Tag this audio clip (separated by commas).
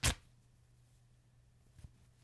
Tearing